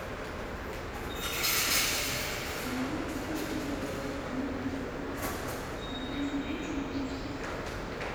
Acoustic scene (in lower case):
subway station